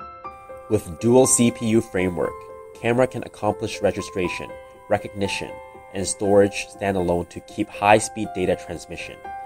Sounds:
Speech, Music

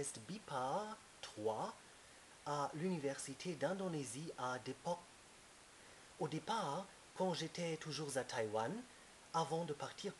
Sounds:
Speech

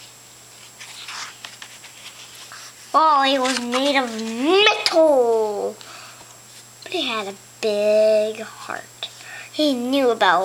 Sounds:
Speech

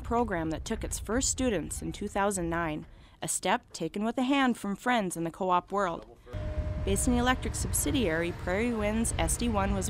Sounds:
Speech

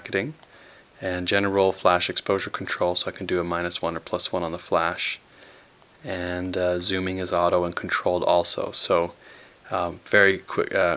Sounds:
Speech

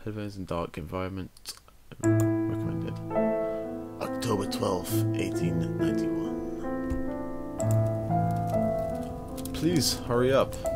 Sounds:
Speech, Music

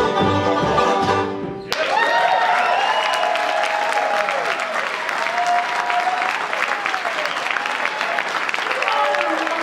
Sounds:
Music, Country, Bluegrass, Applause, people clapping

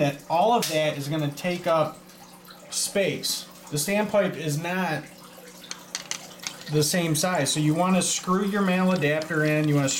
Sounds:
Speech

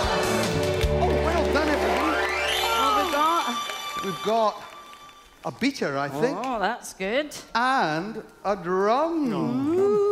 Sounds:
Speech, Music

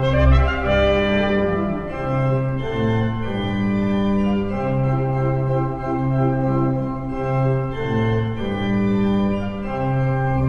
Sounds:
Musical instrument, Keyboard (musical), playing piano, Music, Piano

